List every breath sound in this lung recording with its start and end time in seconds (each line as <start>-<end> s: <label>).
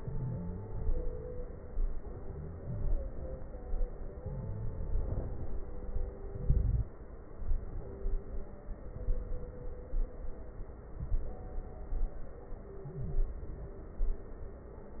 0.00-0.74 s: inhalation
0.00-0.74 s: stridor
0.89-1.63 s: exhalation
0.89-1.63 s: crackles
2.11-2.85 s: inhalation
2.11-2.85 s: stridor
4.20-4.94 s: inhalation
4.20-4.94 s: stridor
4.96-5.70 s: exhalation
4.96-5.70 s: crackles
6.37-6.91 s: inhalation
6.37-6.91 s: crackles
8.95-9.73 s: inhalation
8.95-9.73 s: crackles
10.98-11.76 s: inhalation
10.98-11.76 s: crackles
13.00-13.78 s: inhalation
13.00-13.78 s: crackles